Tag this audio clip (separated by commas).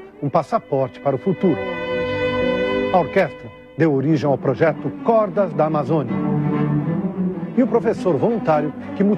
Speech, Cello, Classical music, Music, Musical instrument